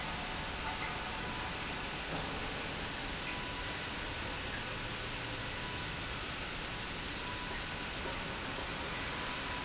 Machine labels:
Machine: pump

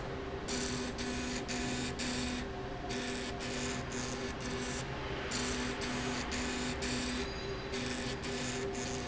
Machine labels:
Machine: slide rail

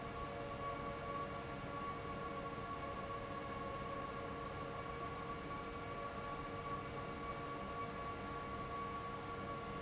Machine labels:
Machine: fan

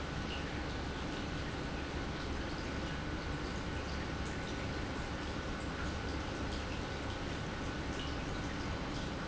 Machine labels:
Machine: pump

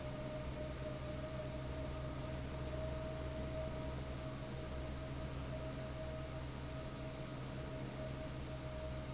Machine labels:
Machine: fan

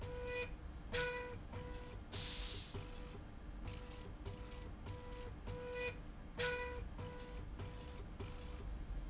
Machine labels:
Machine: slide rail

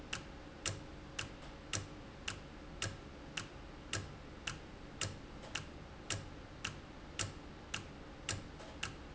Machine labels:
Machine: valve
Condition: normal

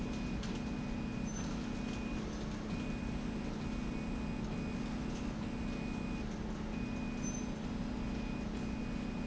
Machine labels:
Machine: slide rail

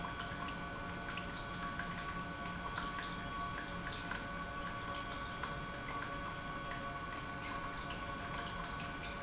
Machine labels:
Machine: pump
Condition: normal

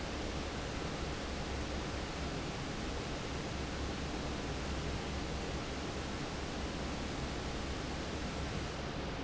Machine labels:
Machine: fan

